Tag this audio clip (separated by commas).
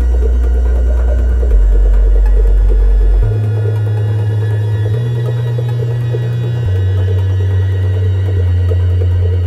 Techno, Electronic music, Music